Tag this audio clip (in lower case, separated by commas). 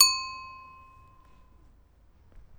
vehicle, bicycle